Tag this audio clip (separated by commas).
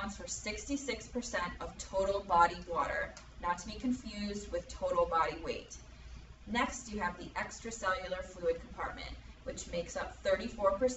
Speech